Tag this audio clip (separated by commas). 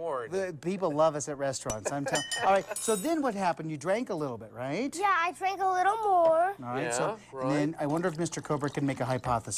Speech